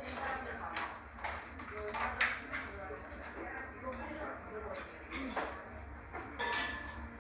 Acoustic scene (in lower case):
cafe